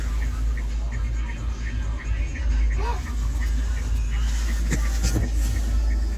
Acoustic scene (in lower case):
car